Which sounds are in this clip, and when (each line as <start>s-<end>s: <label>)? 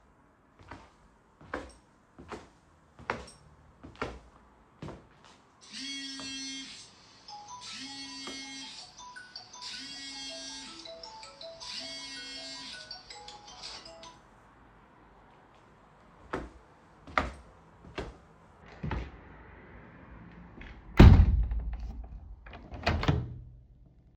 0.4s-5.5s: footsteps
5.7s-14.3s: phone ringing
16.2s-19.2s: footsteps
20.9s-23.5s: window